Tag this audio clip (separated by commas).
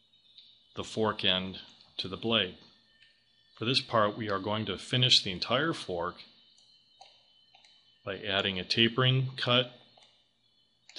Speech